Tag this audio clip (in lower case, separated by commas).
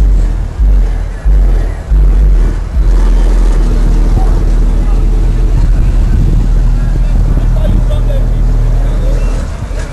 car, vehicle